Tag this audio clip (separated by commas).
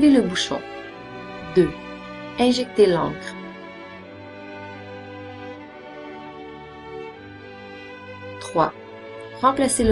Music, Speech